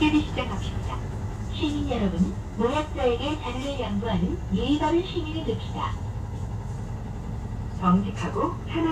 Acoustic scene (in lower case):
bus